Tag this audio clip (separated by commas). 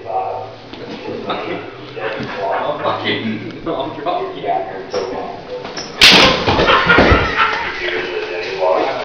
Speech